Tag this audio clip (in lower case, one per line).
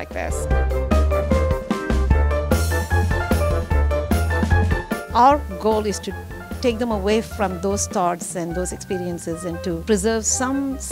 music
speech